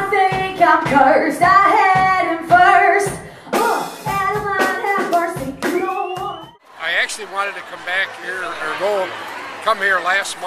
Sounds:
speech, female singing, music

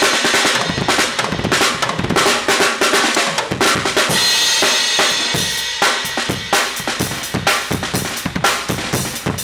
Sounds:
music, bass drum, drum kit, musical instrument

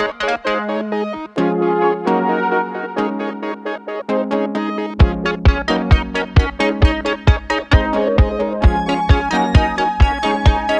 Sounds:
playing synthesizer

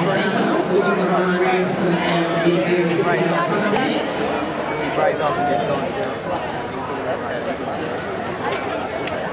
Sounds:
speech, run, crowd

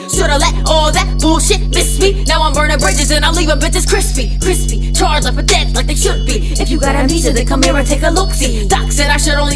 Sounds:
music

